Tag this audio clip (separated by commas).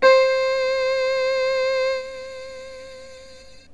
Music, Keyboard (musical), Musical instrument